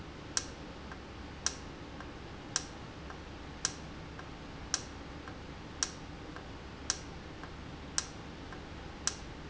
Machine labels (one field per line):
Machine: valve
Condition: normal